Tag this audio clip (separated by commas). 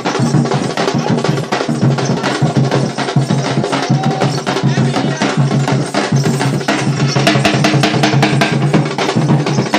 Speech, Music